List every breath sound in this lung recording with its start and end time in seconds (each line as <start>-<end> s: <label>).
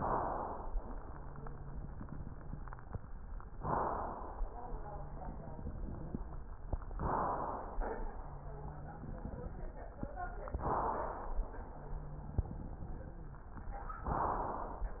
0.00-0.72 s: inhalation
1.02-2.81 s: wheeze
3.53-4.50 s: inhalation
4.56-6.38 s: wheeze
6.95-7.80 s: inhalation
8.13-9.78 s: wheeze
10.58-11.47 s: inhalation
11.73-13.37 s: wheeze
14.02-14.91 s: inhalation